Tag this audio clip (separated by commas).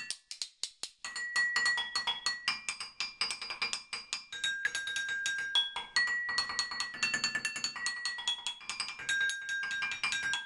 clink, Music, Percussion